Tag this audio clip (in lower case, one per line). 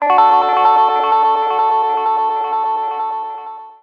guitar
plucked string instrument
music
musical instrument